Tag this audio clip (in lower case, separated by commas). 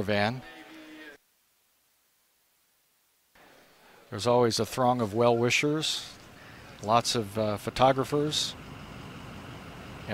speech